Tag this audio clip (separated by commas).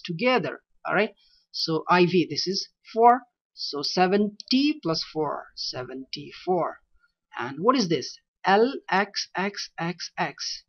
monologue, Speech